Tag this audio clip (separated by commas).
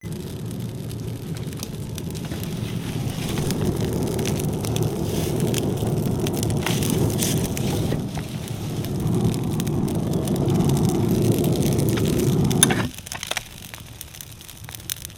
Fire